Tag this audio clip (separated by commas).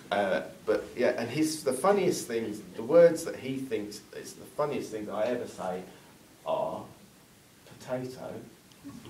Speech